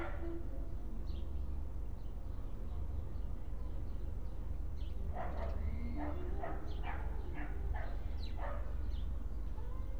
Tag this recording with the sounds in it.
music from a fixed source, dog barking or whining